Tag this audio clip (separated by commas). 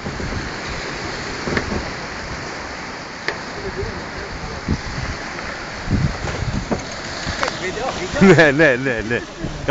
Speech